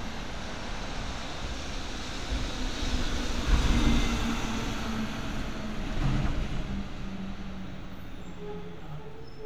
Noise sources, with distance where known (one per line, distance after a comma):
large-sounding engine, near